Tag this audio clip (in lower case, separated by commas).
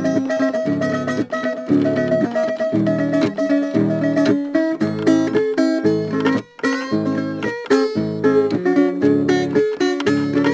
slide guitar